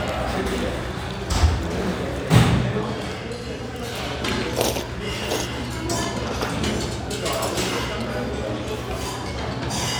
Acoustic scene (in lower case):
restaurant